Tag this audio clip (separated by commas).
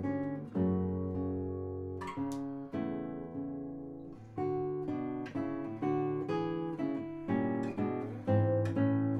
Strum, Musical instrument, Plucked string instrument, Music, playing acoustic guitar, Guitar, Acoustic guitar